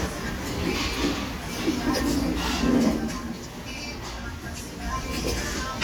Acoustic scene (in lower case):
restaurant